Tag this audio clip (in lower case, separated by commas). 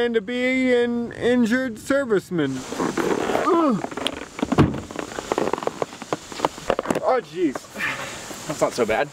speech, male speech